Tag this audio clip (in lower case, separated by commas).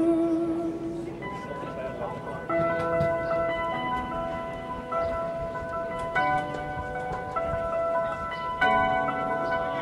music, speech